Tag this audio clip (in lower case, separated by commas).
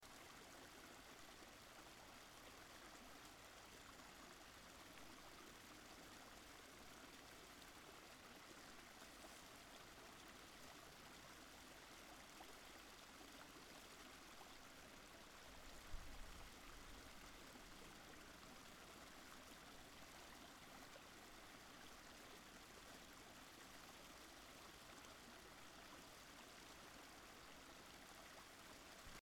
water, stream